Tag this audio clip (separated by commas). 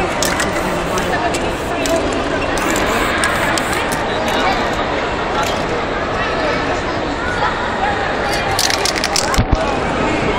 Spray, Speech